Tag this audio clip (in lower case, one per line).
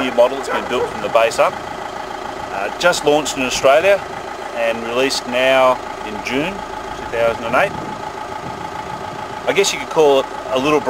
car
speech
vehicle